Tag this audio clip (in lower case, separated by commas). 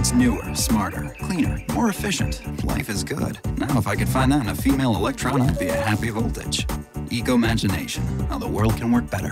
speech, music